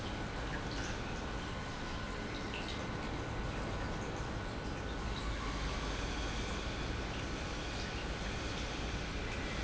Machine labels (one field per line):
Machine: pump